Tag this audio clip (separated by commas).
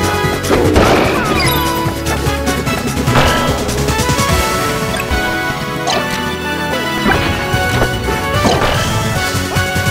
Music